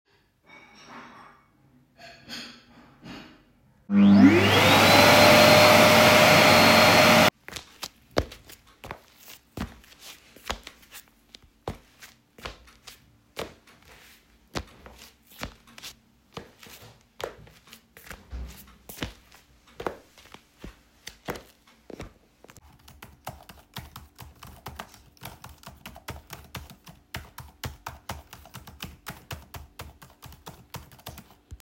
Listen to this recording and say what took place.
I arranged the cutlery, vacuumed the kitchen and then walked back to the desk and typed on my keyboard